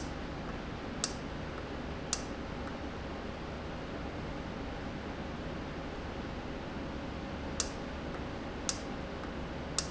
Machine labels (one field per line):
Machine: valve